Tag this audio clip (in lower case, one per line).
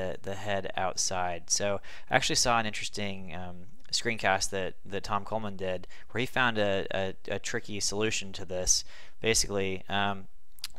speech